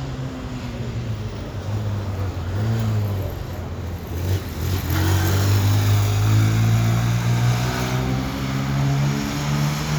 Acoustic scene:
street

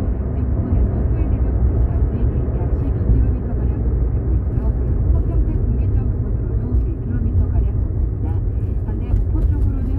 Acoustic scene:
car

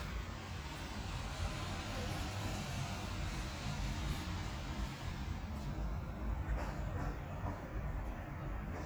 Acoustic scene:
residential area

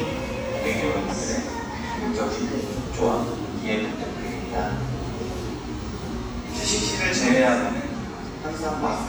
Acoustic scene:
cafe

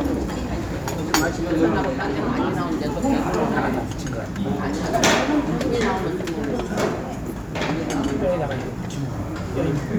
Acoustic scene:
restaurant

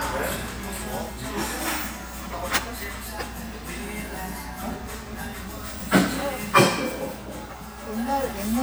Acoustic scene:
restaurant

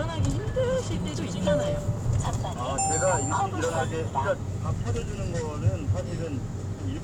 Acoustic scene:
car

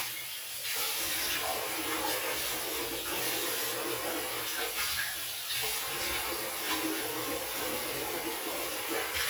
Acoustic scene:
restroom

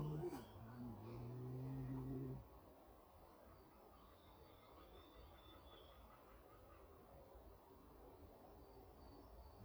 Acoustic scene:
park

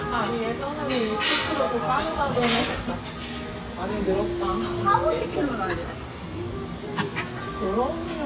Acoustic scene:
restaurant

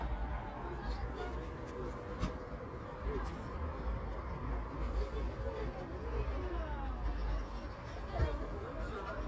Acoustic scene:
park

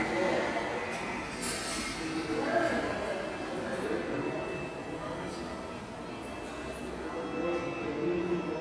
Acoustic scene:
subway station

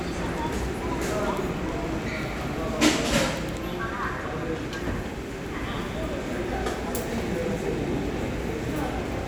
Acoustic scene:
crowded indoor space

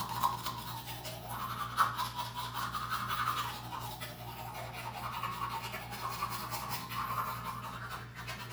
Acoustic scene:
restroom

